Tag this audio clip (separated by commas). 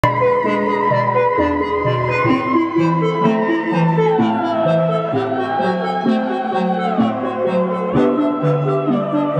playing theremin